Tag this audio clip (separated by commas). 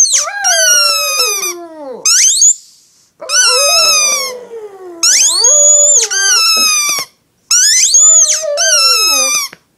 dog howling